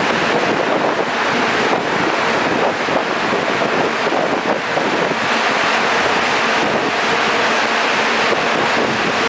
Wind is blowing hard